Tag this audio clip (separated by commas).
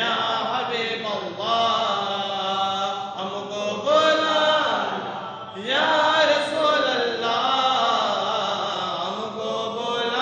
Chant